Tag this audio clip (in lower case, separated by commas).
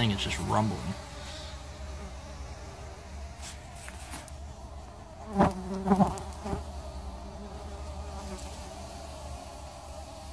etc. buzzing